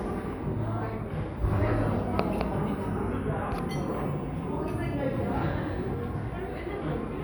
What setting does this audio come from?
cafe